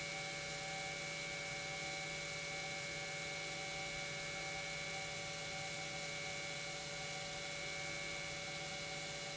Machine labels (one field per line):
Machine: pump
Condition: normal